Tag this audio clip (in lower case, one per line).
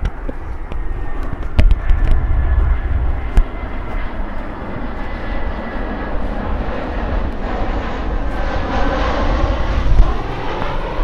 aircraft
vehicle
fixed-wing aircraft